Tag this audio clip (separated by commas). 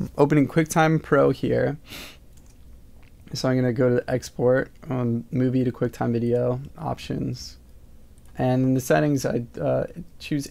Speech